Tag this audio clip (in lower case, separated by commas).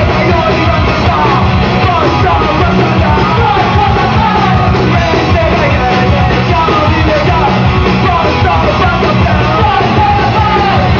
music